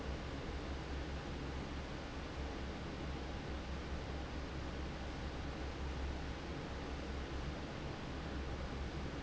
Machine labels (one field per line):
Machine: fan